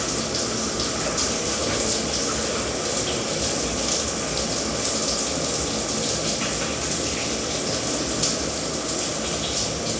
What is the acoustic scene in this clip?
restroom